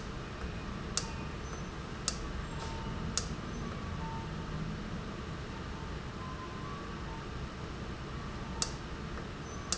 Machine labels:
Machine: valve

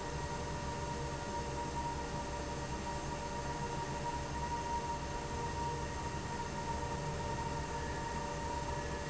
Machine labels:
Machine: fan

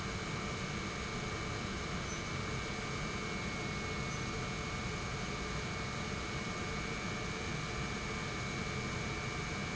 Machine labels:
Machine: pump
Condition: normal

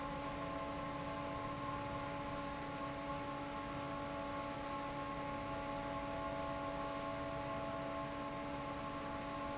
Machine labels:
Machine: fan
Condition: normal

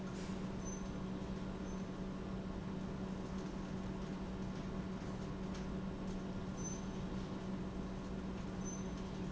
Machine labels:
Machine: pump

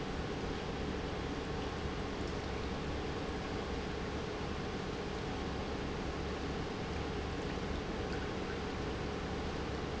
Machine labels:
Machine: pump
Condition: normal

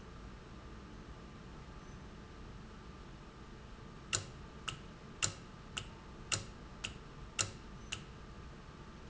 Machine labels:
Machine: valve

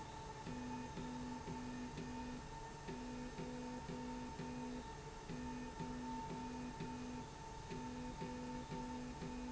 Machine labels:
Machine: slide rail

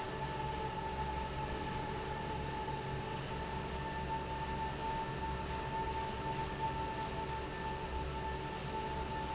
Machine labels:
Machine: fan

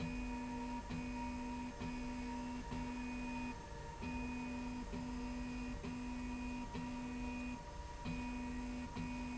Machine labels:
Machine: slide rail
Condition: normal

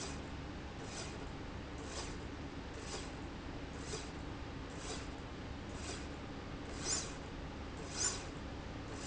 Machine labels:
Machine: slide rail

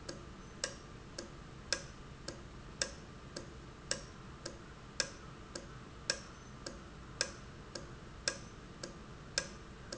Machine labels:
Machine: valve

